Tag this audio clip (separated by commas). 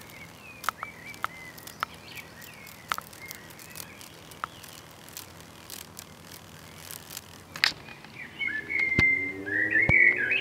Insect